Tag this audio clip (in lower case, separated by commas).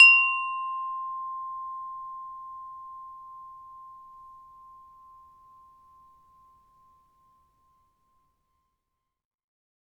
wind chime, bell, chime